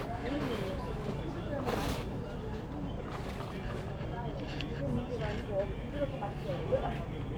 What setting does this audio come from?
crowded indoor space